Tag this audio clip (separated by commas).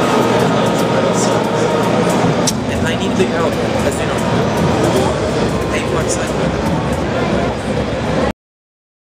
Speech